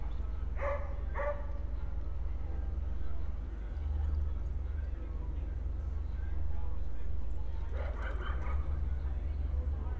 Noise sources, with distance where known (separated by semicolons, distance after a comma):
dog barking or whining, far